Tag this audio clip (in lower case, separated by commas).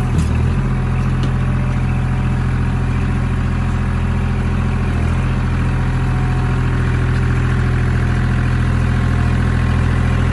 tractor digging